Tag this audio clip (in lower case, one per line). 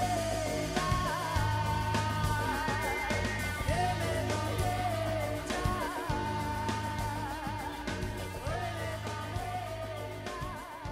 music